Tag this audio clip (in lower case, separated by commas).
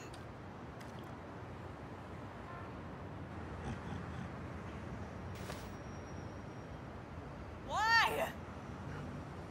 music, speech